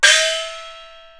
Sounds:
musical instrument, gong, music, percussion

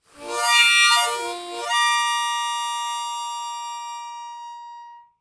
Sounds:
harmonica, musical instrument, music

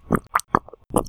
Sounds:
gurgling, water

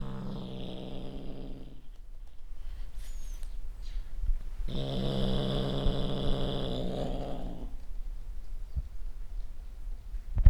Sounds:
pets, animal, cat, growling

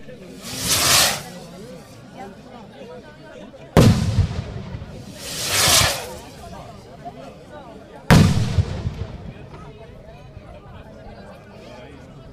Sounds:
fireworks, explosion

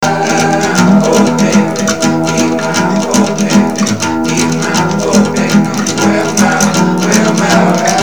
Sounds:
guitar, plucked string instrument, music, musical instrument, acoustic guitar, human voice

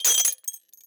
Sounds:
glass, shatter

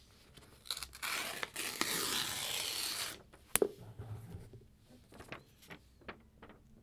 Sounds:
tearing

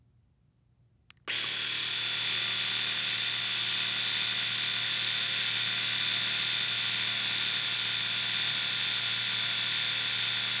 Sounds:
home sounds

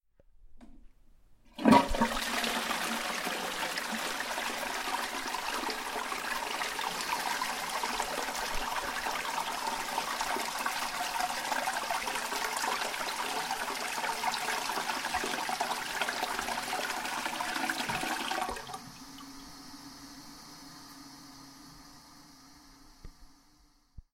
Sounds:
toilet flush, home sounds

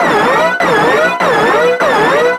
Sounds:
alarm

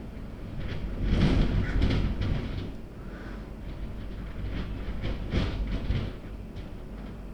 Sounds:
wind

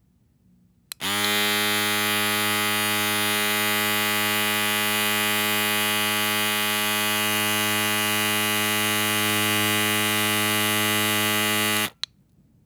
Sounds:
home sounds

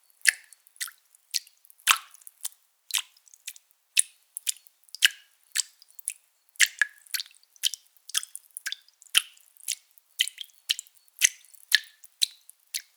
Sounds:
drip, liquid

